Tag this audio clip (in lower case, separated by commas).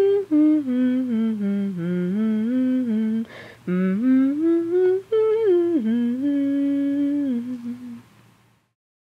woman speaking, humming